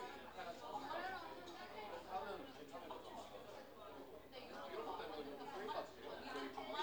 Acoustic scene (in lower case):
crowded indoor space